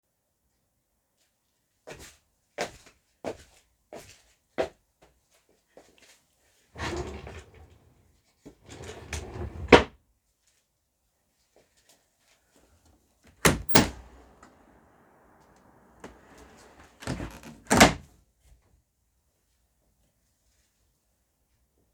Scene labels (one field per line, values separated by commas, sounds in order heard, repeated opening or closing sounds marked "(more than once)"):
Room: bedroom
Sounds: footsteps, wardrobe or drawer (more than once), window (more than once)